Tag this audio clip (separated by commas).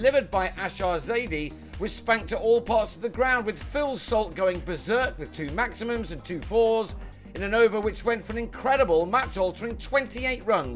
Music, Speech